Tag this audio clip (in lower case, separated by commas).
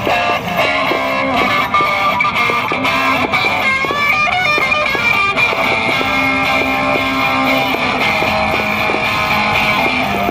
electric guitar, strum, musical instrument, plucked string instrument, guitar, music